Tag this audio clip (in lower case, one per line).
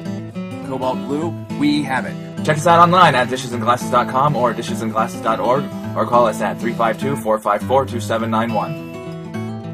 speech
music